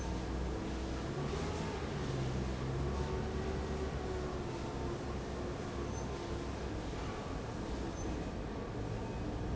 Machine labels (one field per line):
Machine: fan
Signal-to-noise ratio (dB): -6 dB